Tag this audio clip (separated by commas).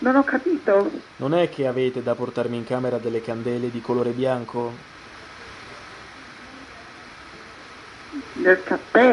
Speech